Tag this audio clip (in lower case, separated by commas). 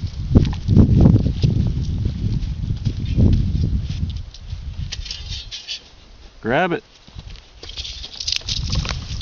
speech, outside, rural or natural